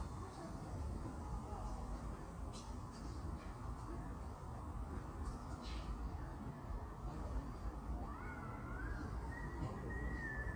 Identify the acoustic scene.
park